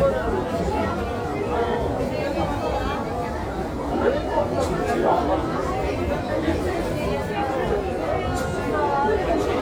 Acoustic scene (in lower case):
crowded indoor space